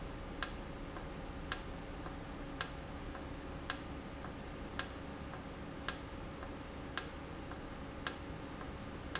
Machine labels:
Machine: valve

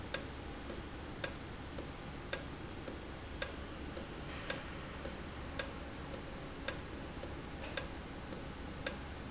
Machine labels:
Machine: valve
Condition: normal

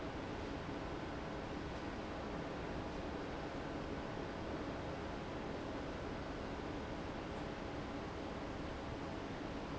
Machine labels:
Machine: fan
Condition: abnormal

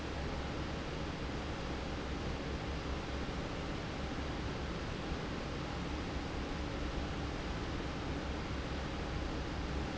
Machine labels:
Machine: fan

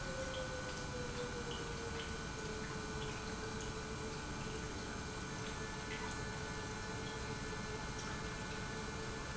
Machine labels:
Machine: pump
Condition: normal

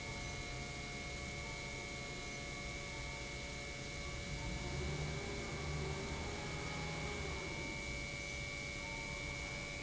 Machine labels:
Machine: pump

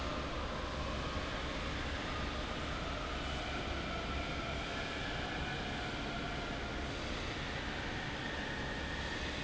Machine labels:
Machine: fan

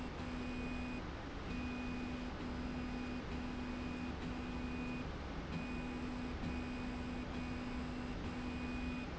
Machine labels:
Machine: slide rail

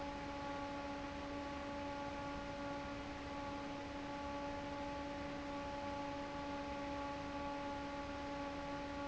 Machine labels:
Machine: fan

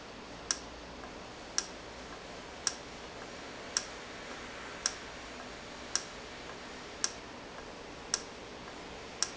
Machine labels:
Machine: valve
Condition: normal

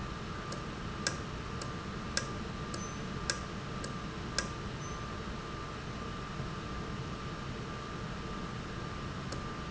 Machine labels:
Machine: valve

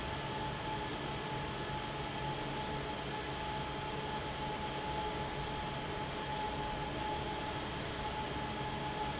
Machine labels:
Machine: fan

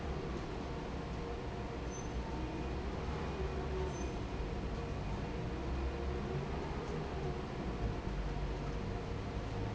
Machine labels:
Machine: fan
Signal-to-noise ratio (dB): -6 dB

